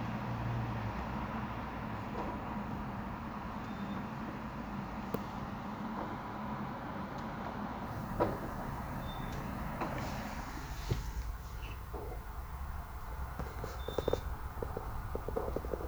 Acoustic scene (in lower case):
residential area